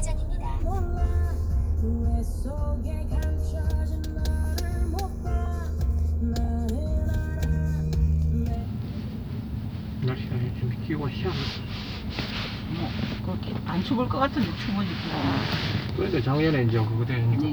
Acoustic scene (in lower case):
car